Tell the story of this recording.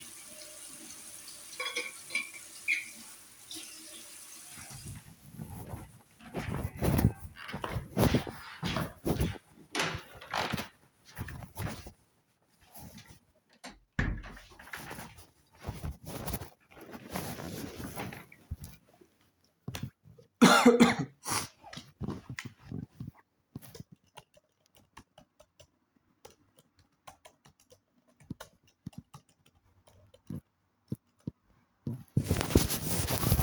I filled my water bottle and then closed the lid, turned off the tap, walked out of the kitchen, through the hallway, opened the door to my bedroom, closed it, sat on my bed, coughed and started typing on my laptop.